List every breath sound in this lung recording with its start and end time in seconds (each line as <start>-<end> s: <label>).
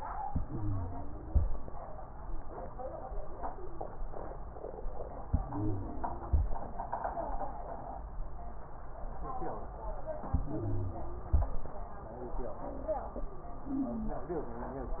0.22-1.43 s: inhalation
0.22-1.43 s: wheeze
5.25-6.46 s: inhalation
5.25-6.46 s: wheeze
10.30-11.51 s: inhalation
10.30-11.51 s: wheeze